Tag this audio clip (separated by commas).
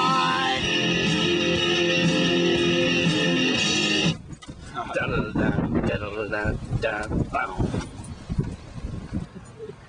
Music, Speech